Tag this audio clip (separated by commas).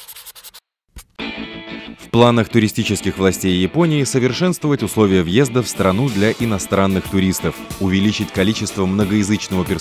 Speech, Music